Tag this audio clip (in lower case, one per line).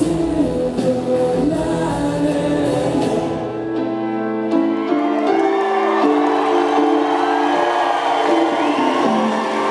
singing